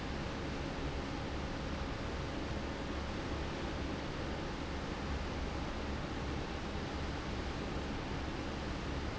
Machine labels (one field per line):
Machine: fan